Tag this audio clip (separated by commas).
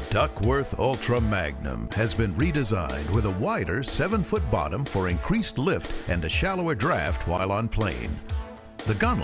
Music, Speech